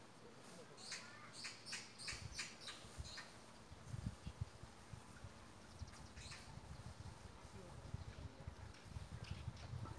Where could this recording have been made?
in a park